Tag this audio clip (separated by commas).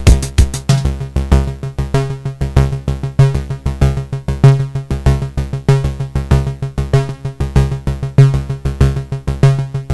Music, Drum machine